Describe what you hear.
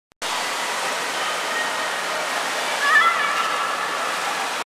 Water flows as a child shouts in the background